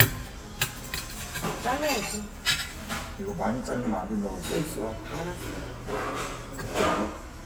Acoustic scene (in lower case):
restaurant